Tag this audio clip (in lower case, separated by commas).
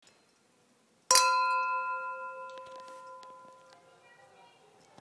liquid, glass, human group actions, clink